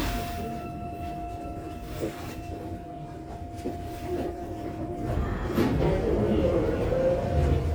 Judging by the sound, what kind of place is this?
subway train